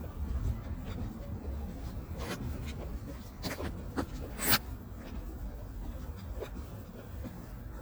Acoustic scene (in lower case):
park